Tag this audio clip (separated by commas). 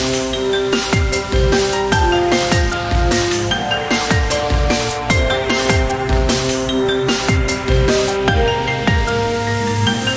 Music